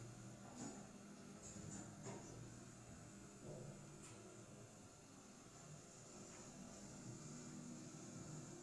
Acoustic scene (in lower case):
elevator